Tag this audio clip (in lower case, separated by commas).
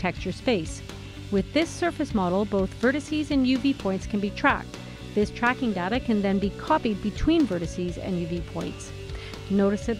music, speech